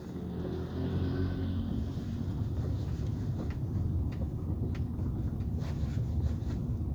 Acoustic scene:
car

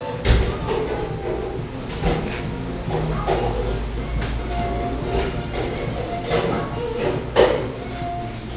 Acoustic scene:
cafe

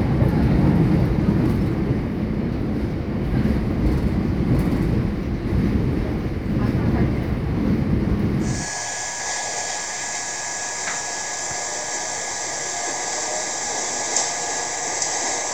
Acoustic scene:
subway train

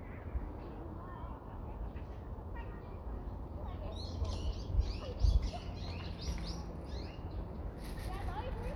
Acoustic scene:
residential area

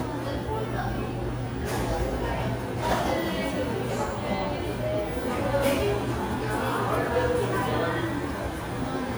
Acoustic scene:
cafe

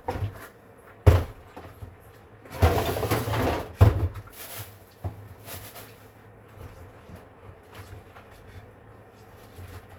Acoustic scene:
kitchen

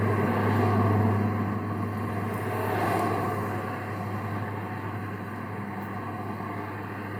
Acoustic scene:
street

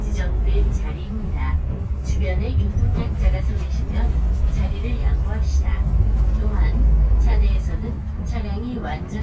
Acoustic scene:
bus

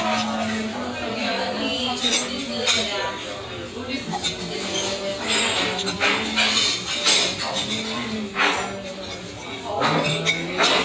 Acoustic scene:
restaurant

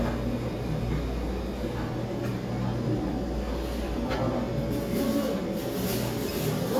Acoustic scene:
cafe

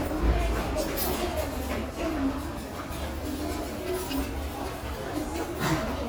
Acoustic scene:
restaurant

